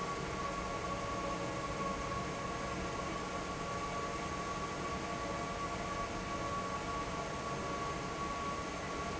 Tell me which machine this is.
fan